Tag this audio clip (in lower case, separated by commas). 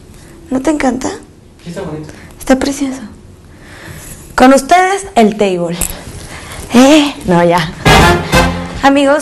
music, speech